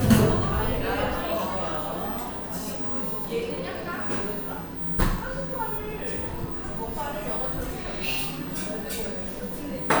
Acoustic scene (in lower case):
cafe